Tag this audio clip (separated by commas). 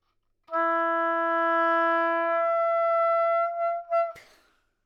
Music, Musical instrument, woodwind instrument